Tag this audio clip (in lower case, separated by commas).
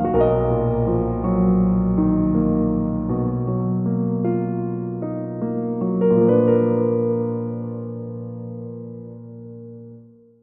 background music, music